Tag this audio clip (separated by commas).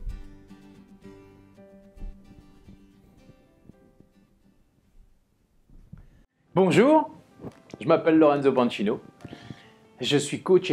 Speech, Music